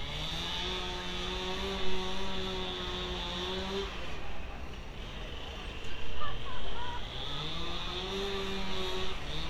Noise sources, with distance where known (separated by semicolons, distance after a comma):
chainsaw; unidentified human voice